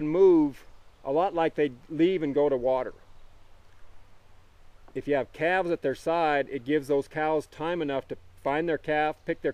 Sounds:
speech

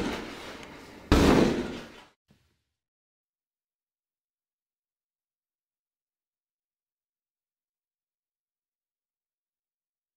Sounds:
door

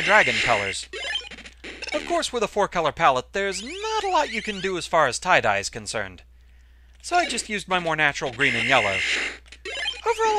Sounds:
speech

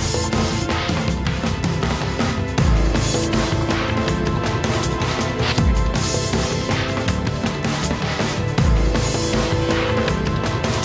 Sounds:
music

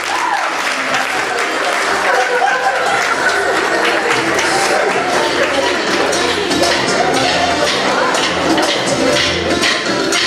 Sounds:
music, inside a large room or hall

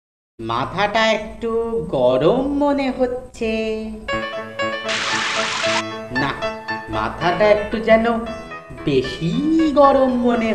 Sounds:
music, speech

